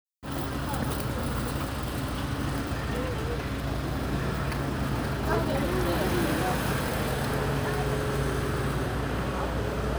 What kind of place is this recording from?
residential area